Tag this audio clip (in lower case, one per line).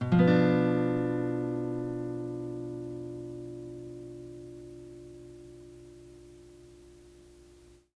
musical instrument
plucked string instrument
music
guitar